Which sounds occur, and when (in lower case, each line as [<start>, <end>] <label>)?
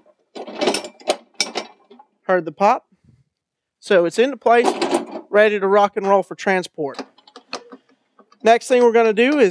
[0.00, 9.50] mechanisms
[0.28, 2.02] generic impact sounds
[2.28, 2.77] male speech
[2.88, 3.34] wind noise (microphone)
[2.90, 3.24] breathing
[3.50, 3.75] breathing
[3.84, 4.69] male speech
[4.41, 5.25] generic impact sounds
[4.59, 4.59] male speech
[5.35, 7.00] male speech
[6.92, 9.50] generic impact sounds
[8.46, 9.50] male speech